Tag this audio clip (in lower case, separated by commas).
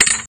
thud